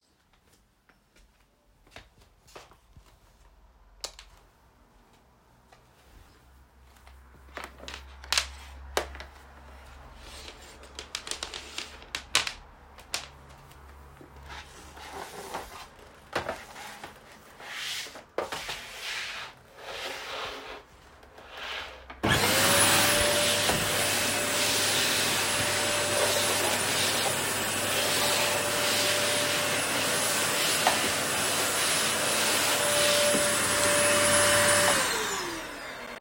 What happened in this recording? I walked into the room and turned on the light switch. then retrieved the vacuum cleaner and arranged its power cord before beginning to use it.